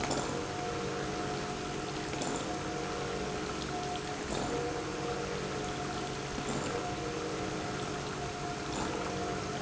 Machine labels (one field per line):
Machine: pump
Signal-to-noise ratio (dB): -6 dB